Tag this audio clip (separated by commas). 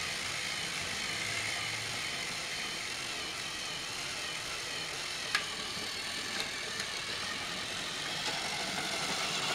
Engine